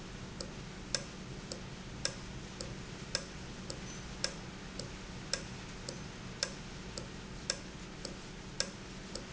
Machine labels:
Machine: valve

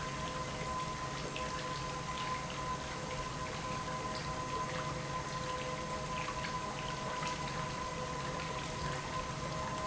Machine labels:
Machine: pump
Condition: normal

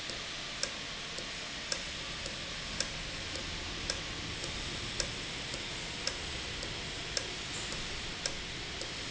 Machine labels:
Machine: valve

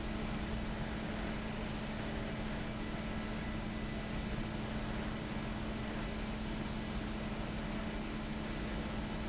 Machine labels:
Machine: fan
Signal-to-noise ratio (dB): -6 dB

